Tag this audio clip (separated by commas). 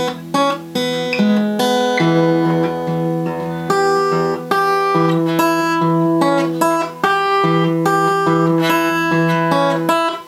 Guitar, Musical instrument, Plucked string instrument, Music